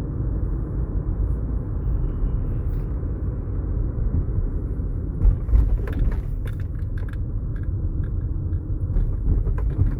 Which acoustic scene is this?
car